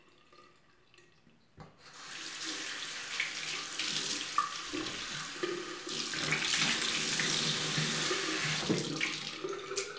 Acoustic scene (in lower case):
restroom